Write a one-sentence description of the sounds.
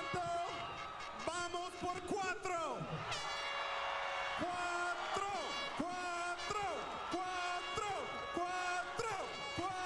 A person talking with horn noises and people cheering